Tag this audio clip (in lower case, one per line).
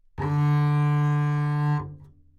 musical instrument
music
bowed string instrument